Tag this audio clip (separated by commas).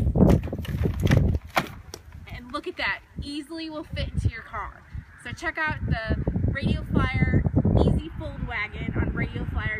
Speech